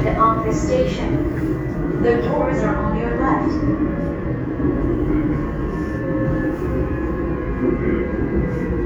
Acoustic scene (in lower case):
subway train